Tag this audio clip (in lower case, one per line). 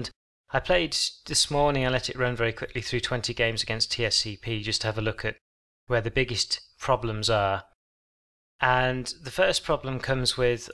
speech